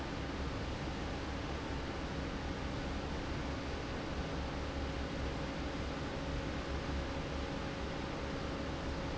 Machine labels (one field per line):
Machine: fan